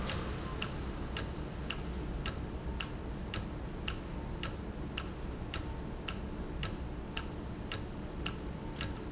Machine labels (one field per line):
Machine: valve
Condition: normal